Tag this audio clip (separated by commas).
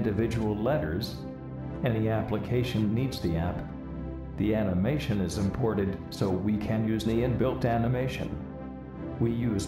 Music, Speech